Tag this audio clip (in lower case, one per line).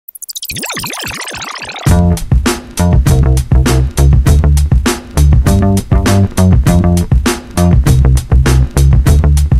music